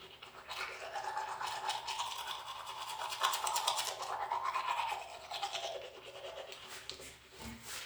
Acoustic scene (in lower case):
restroom